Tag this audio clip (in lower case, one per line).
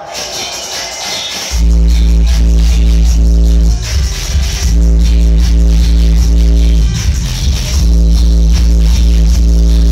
music